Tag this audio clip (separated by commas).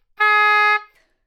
Musical instrument, Wind instrument, Music